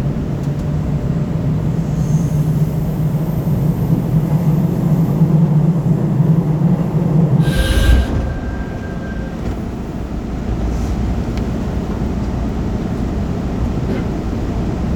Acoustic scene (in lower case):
subway train